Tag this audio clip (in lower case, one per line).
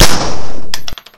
gunfire
explosion